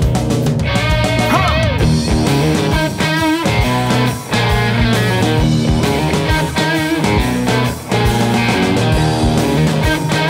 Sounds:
Music

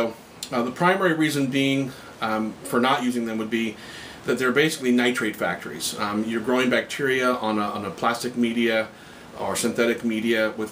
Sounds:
Speech

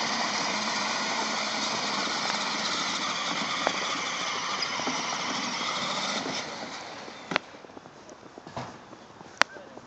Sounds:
Car, Crackle, Vehicle

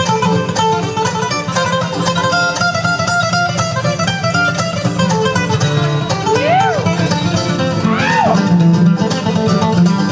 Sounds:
Musical instrument, Country, Plucked string instrument, Banjo, Guitar, Bluegrass, playing banjo, Music

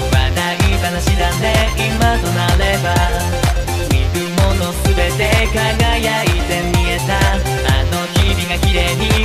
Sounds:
Music

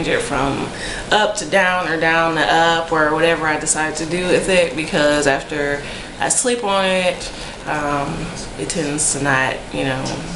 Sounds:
Speech

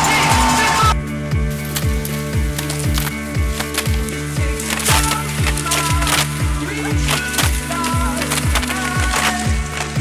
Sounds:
Music

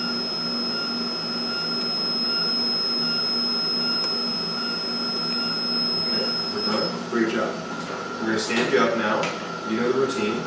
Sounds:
Speech

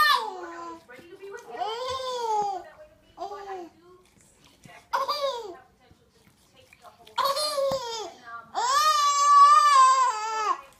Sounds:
baby laughter

